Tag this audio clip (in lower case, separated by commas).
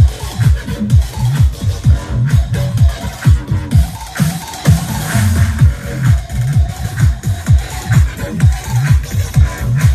people shuffling